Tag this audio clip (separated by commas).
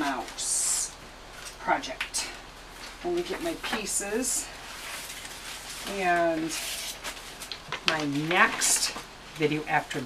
Speech